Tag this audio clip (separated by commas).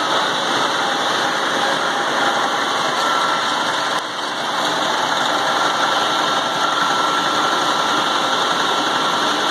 Engine